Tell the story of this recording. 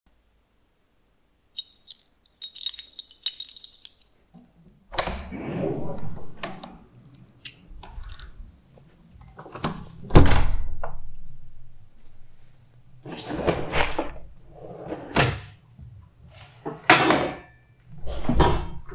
I shook the keychain, then I opened and closed the door. Afterwards I opened and closed two drawers.